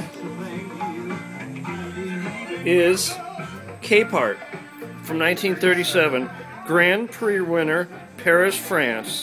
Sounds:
music
speech
radio

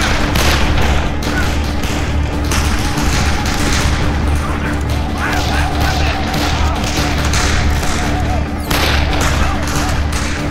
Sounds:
speech
music

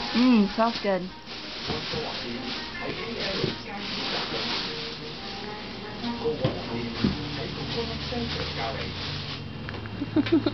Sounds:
music
speech

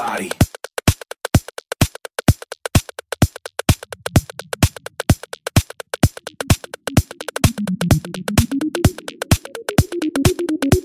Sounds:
house music
music
new-age music

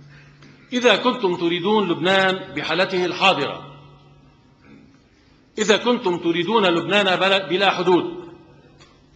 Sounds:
man speaking
narration
speech

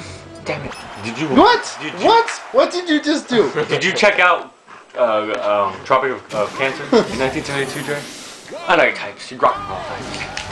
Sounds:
speech

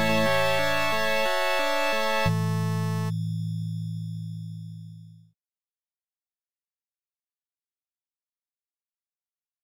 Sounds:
silence
music

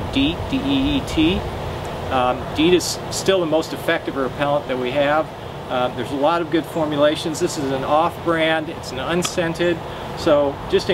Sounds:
speech

